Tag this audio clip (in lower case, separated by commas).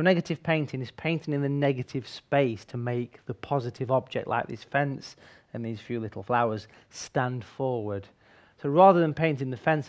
speech